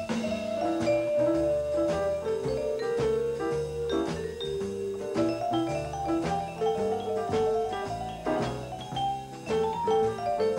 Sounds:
playing vibraphone

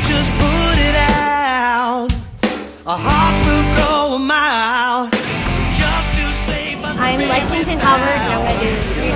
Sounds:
music, speech

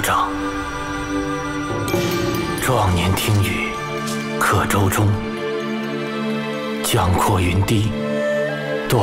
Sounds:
speech, music

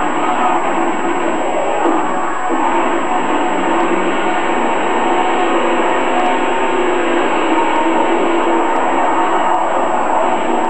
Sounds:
vehicle, truck

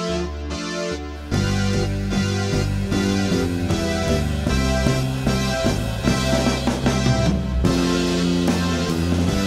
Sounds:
soundtrack music, music

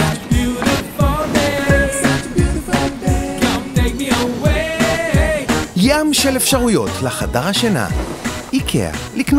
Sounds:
speech, exciting music, music

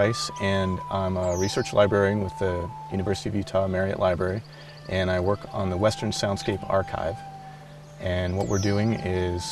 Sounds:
music, speech

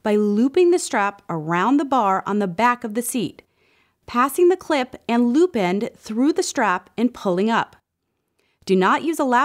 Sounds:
speech

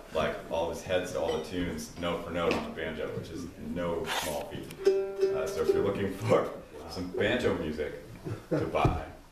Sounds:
speech, music, banjo

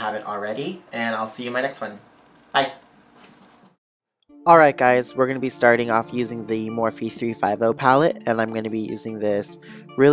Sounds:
music, speech

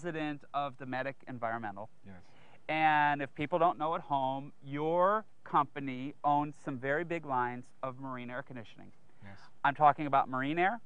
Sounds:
speech

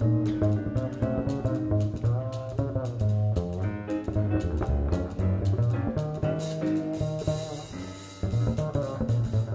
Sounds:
musical instrument, orchestra, music

